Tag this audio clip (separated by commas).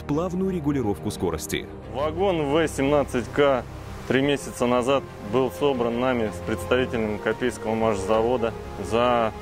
Music, Speech